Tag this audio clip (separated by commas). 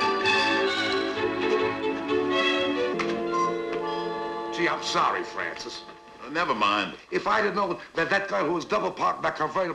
Speech, Music